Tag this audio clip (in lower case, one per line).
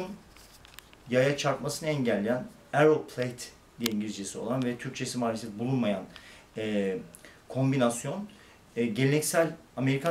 speech